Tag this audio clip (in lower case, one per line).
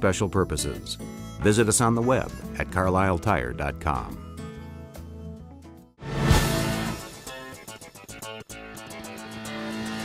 speech
music